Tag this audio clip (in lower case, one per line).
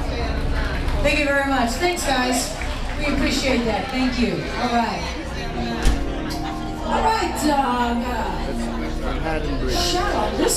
speech
music